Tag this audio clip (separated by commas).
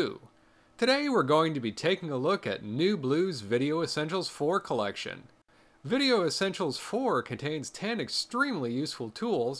Speech